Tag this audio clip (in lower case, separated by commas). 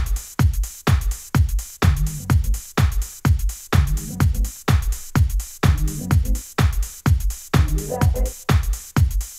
music